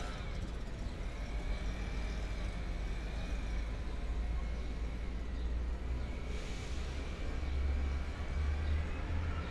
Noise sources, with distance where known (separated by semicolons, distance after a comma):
large-sounding engine